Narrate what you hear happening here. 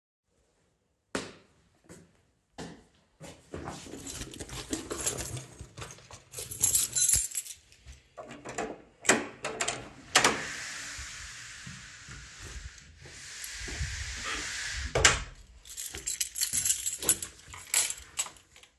I look through my bag to find my keys. I find them, unlock the door and go inside.